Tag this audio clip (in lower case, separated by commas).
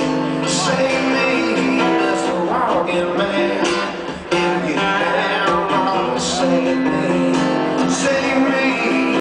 rhythm and blues, music, soundtrack music